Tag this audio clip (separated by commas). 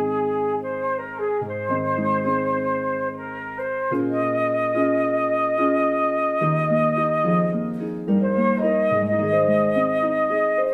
Music, Flute